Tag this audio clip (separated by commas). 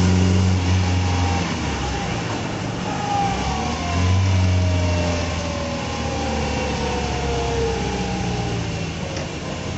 Car, Vehicle